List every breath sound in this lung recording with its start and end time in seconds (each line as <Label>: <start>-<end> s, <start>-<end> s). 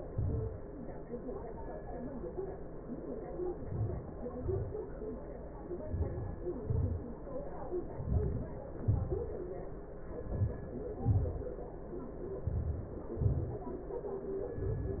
Inhalation: 5.52-6.49 s, 7.80-8.79 s, 9.98-11.10 s, 12.47-13.45 s
Exhalation: 6.47-7.31 s, 8.82-9.45 s, 11.12-11.82 s, 13.43-13.98 s